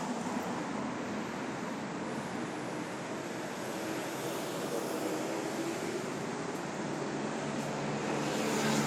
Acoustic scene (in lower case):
street